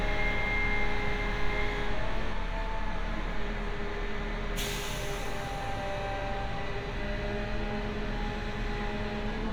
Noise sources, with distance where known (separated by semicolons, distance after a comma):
small or medium rotating saw, near